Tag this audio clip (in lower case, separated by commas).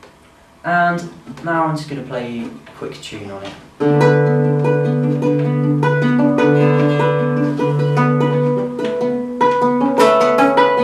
speech, guitar, musical instrument, acoustic guitar, music